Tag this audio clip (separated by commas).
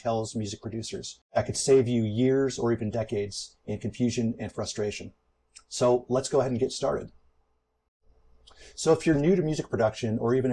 Speech